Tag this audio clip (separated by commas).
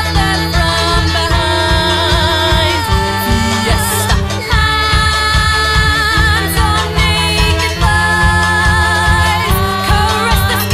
Music, Pop music, Accordion